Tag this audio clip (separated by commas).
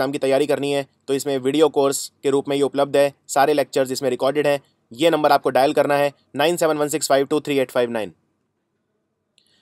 Speech